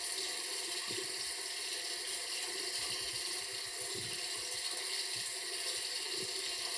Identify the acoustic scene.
restroom